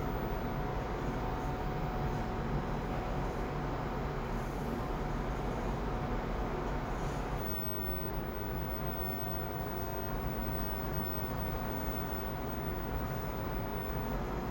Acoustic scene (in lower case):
elevator